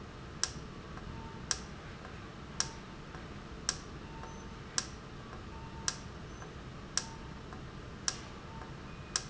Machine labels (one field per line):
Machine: valve